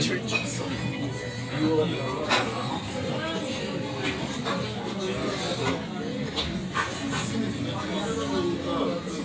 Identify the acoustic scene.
crowded indoor space